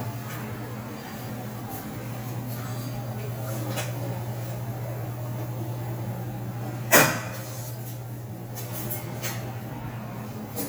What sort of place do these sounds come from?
elevator